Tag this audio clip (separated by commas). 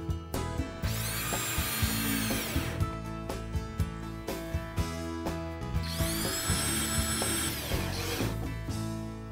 Music